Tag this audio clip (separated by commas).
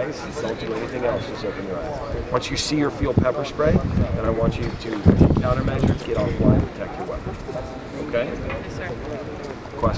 Speech